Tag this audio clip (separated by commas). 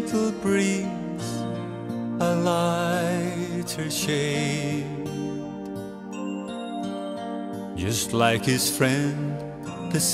Music